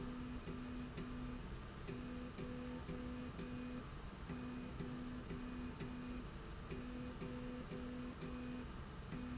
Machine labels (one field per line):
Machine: slide rail